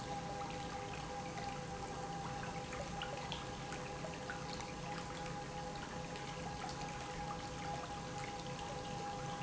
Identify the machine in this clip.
pump